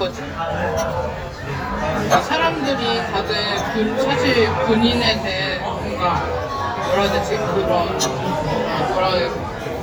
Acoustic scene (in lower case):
crowded indoor space